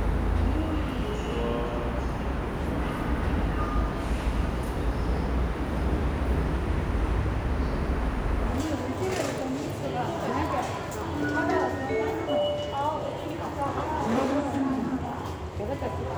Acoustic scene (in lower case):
subway station